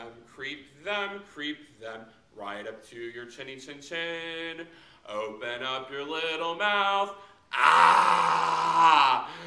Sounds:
speech

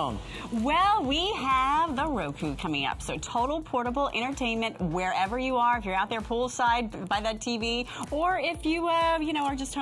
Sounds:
music, speech

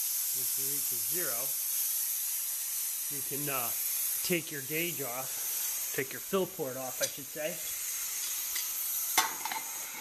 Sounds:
speech

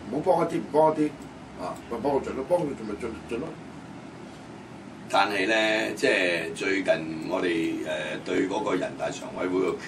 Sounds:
speech

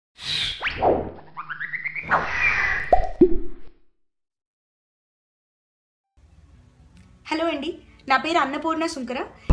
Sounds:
inside a small room, speech, music

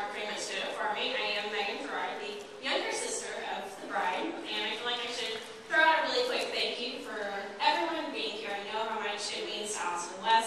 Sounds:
speech, narration, woman speaking

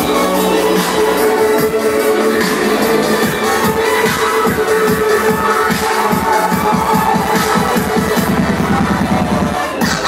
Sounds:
electronic music, music, dubstep

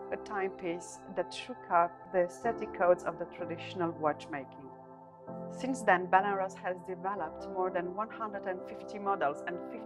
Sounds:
speech, music

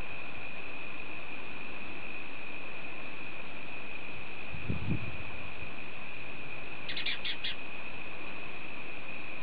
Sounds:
animal, bird

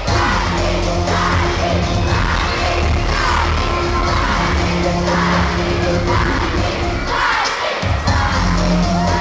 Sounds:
music

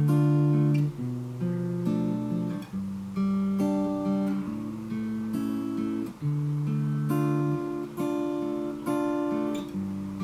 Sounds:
acoustic guitar, guitar, strum, musical instrument, plucked string instrument, music

